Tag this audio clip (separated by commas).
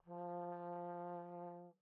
Music, Musical instrument, Brass instrument